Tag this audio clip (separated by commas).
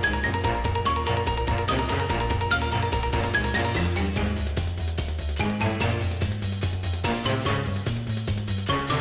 Music